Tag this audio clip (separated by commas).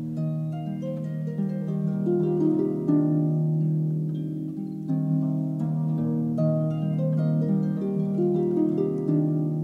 Music